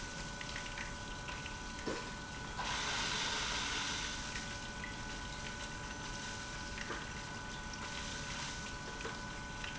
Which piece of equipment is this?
pump